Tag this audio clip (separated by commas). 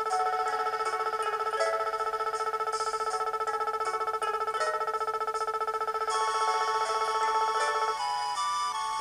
Music